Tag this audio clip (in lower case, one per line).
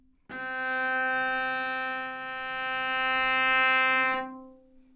music
bowed string instrument
musical instrument